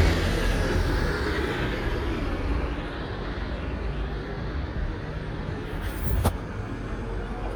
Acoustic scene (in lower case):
street